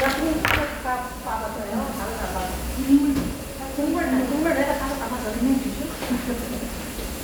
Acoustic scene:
restaurant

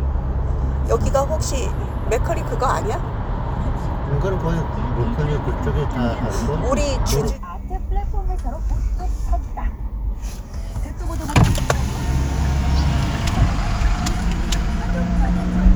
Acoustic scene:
car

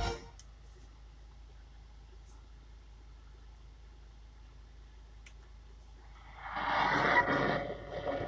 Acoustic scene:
car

